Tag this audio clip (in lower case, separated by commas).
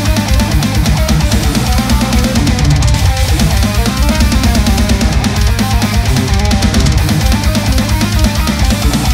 guitar, plucked string instrument, musical instrument, music, electric guitar, strum